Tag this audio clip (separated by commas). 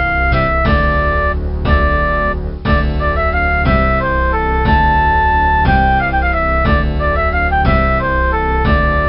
Music